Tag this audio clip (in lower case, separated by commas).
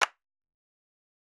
hands, clapping